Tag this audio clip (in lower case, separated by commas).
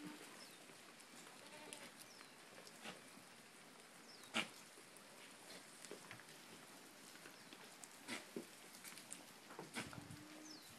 animal, goat